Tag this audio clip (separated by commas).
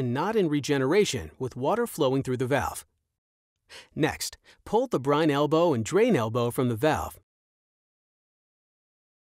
Speech